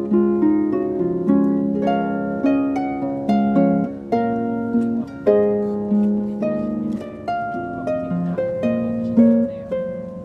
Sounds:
music, harp

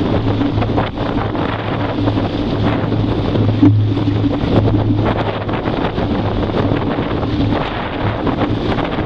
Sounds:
wind noise (microphone), surf, motorboat, ocean, wind, water vehicle

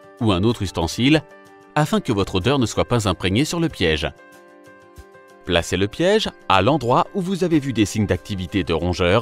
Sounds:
music, speech

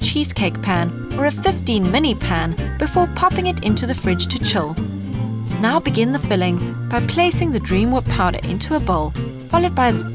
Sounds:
music, speech

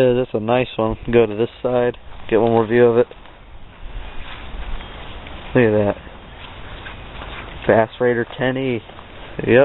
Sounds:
speech

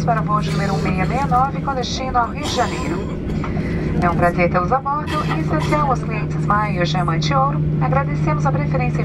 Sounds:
female speech, speech synthesizer, speech, narration

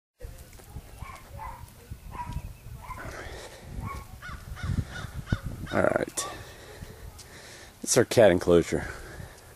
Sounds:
outside, rural or natural, dog, speech, domestic animals

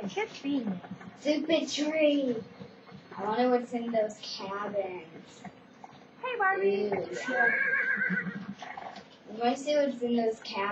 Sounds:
clip-clop, speech

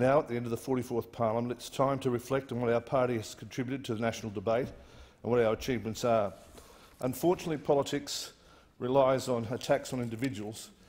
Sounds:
speech, man speaking, monologue

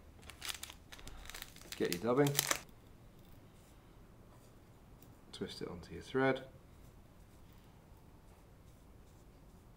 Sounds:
speech, crinkling

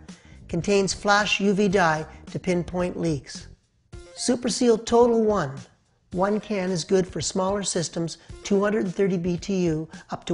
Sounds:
music, speech

